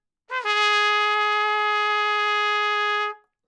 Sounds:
Music, Musical instrument, Trumpet, Brass instrument

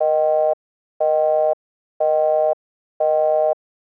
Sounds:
Alarm, Telephone

